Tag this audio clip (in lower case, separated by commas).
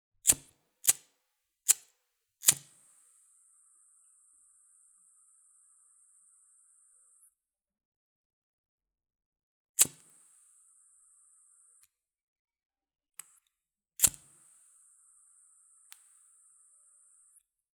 fire